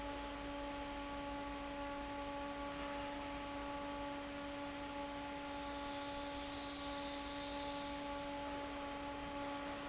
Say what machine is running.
fan